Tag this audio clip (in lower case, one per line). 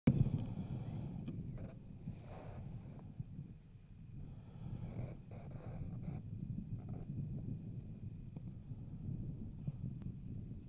outside, rural or natural